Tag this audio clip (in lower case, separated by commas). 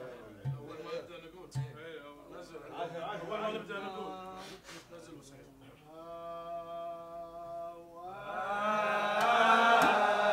speech